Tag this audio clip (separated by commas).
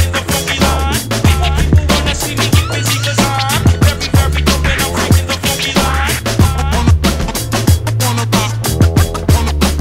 Music